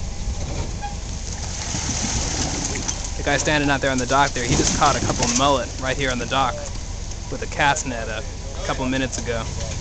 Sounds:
speech

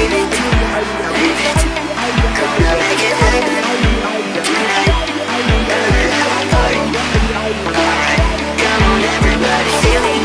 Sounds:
music

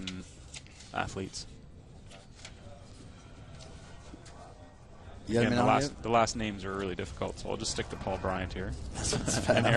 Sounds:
canoe
speech

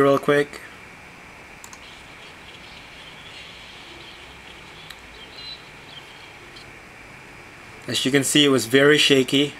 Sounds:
speech

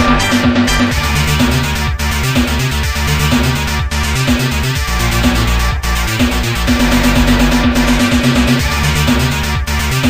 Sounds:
music
video game music

